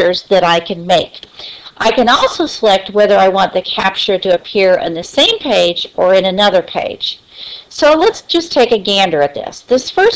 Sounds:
Speech

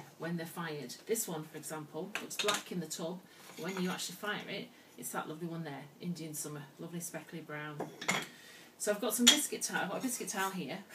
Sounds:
Speech

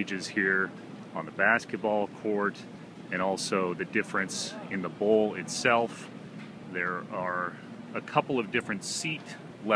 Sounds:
Speech

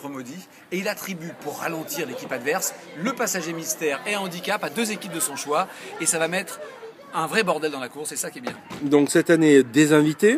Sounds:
Speech

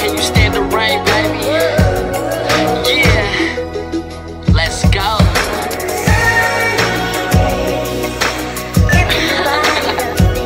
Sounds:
Music

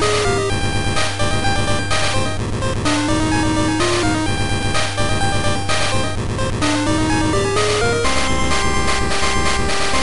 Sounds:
Sound effect, Music

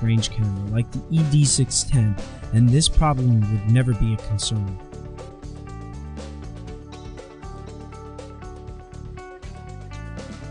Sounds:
Speech, Music

